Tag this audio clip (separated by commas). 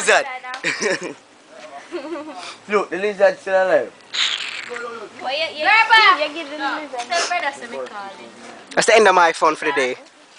outside, rural or natural, Speech